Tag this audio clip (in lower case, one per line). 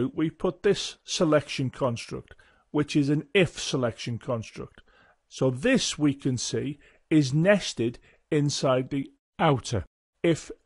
speech